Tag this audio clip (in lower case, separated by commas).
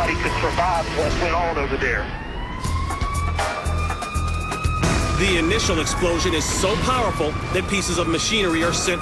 explosion, speech, music